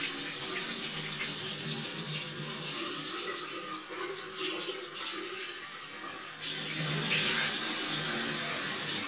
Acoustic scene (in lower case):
restroom